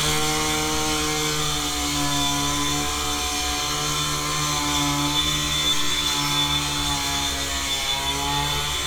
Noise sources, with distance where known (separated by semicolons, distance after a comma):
unidentified powered saw, near